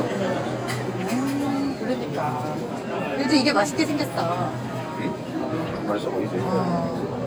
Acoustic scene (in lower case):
crowded indoor space